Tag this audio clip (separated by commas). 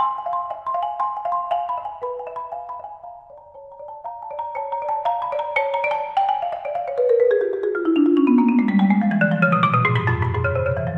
Mallet percussion, Glockenspiel, xylophone